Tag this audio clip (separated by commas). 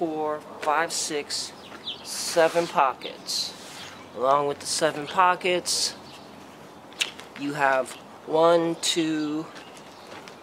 Speech